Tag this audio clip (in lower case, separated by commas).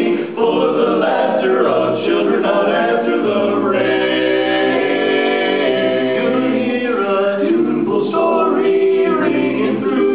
music, male singing, choir